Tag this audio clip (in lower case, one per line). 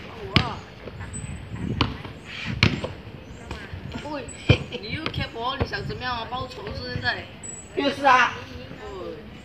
basketball bounce